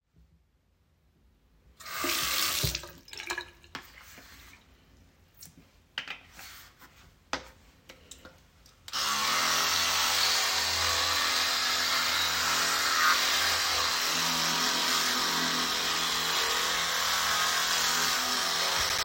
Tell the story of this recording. I turned on the water for my toothbrush, turned it off again, picked up, used and put down some toothpaste, and finally I switched my electric toothbrush on.